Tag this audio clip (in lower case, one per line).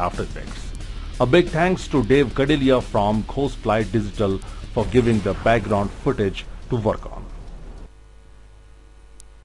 speech
music